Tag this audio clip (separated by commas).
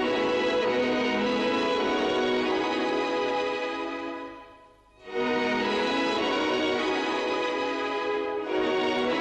Music, Background music